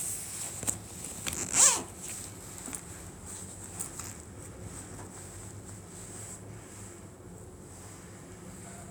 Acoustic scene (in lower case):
elevator